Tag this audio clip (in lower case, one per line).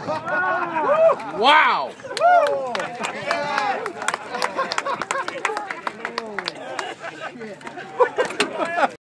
speech